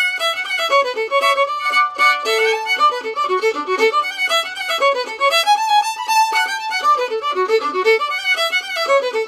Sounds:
Music, Musical instrument, Violin

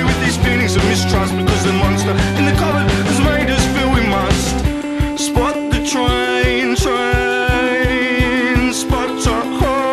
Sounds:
Music

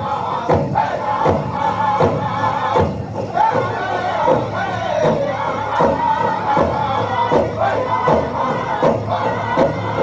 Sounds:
Music

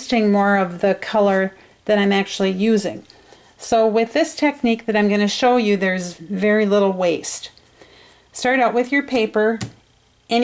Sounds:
Speech

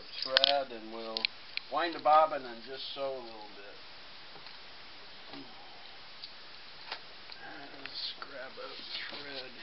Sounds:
Speech

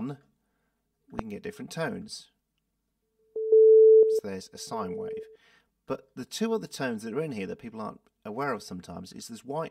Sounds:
Speech

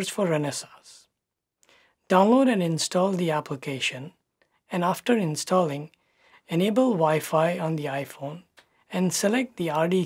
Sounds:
Narration, Speech, inside a small room

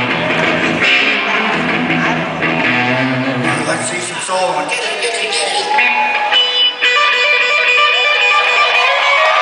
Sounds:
Musical instrument, Guitar, Plucked string instrument, Electric guitar, Speech, Strum, Music

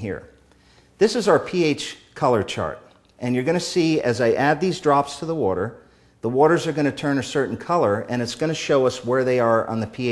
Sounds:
Speech

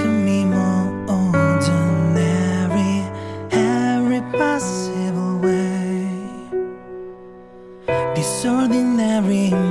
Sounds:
Music

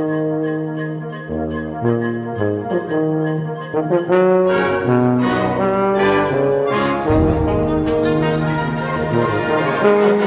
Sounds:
Orchestra, Trombone, Music, Brass instrument, Musical instrument

